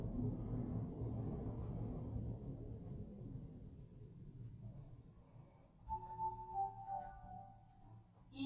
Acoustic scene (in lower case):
elevator